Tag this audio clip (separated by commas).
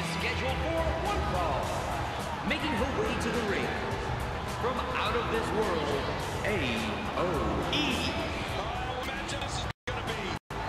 Music, Speech